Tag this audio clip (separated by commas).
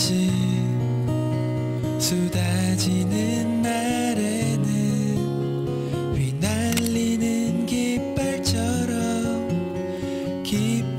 Music